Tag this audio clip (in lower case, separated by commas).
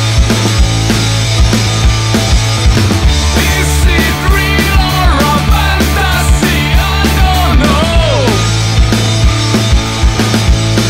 music, rhythm and blues